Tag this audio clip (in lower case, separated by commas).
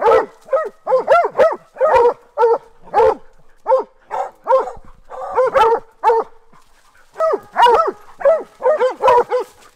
dog baying